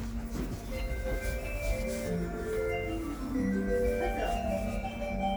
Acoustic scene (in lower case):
subway station